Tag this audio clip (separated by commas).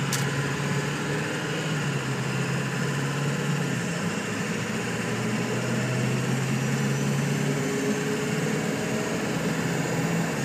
Idling, Car, Vehicle